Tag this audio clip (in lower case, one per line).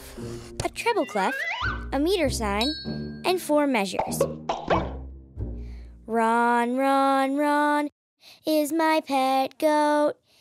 music
child speech